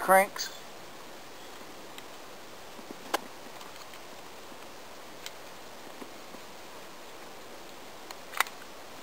Someone says a word then there is a crank while nature sounds and birds are in the background